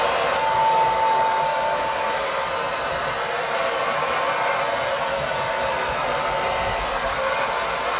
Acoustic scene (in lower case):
restroom